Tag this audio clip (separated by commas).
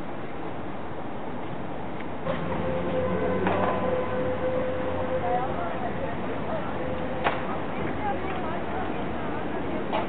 Speech